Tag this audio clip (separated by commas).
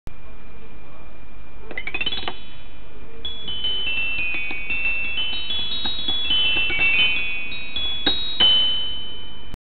Music, Marimba